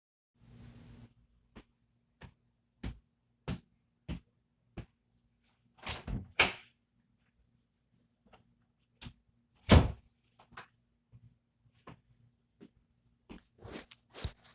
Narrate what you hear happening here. Person opens the door and walks through hallway.